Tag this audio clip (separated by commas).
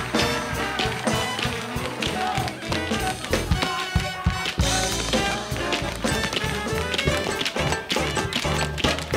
tap dancing